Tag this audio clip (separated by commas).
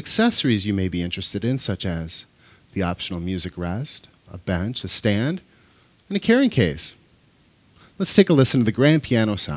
Speech